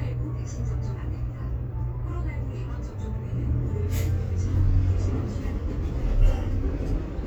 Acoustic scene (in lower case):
bus